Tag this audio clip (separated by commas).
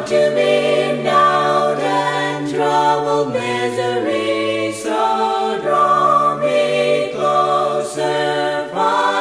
Music